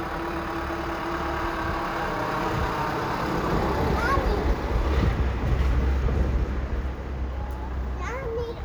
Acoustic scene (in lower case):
residential area